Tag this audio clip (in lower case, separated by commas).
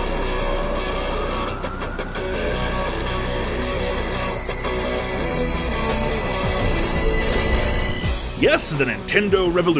music, speech